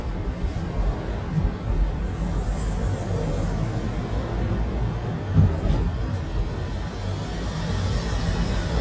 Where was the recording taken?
in a car